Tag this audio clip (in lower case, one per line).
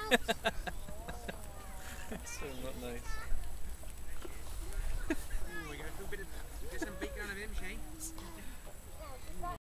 speech